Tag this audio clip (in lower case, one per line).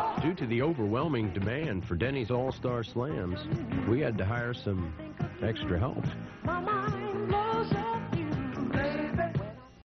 music
speech